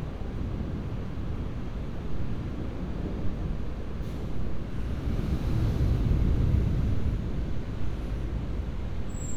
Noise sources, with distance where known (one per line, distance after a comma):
large-sounding engine, far